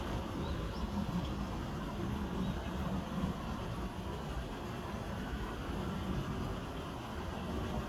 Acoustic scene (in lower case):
park